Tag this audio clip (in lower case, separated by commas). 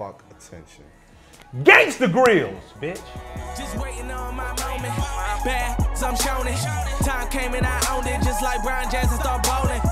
speech, music